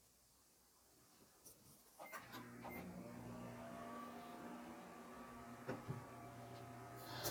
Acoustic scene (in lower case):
kitchen